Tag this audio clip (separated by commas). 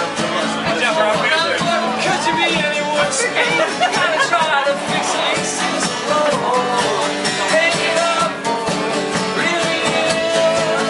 Speech, Music